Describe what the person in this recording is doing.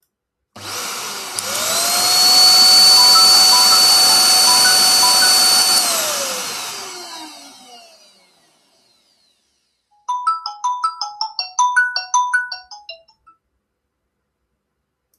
I pressed the record button with my mouse on my PC. Then turned on the vacuum cleaner, cleaned the floor and my phone rang. I hung up the phone, stopped the vacuum cleaner and the phone rang again.